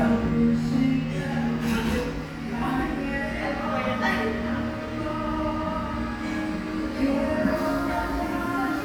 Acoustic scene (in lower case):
cafe